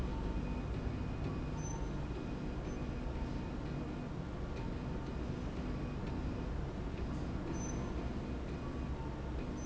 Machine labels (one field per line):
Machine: slide rail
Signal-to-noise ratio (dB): -6 dB